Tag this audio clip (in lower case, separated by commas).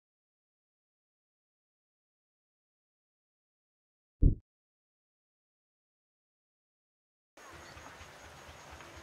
silence